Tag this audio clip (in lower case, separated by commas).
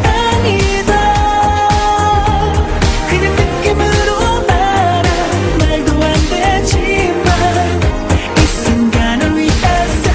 music